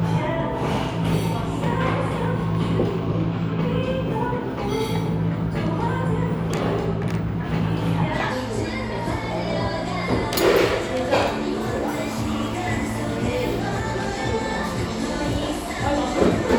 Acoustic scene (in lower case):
cafe